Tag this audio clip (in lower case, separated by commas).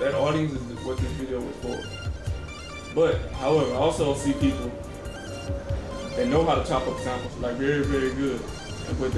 speech, music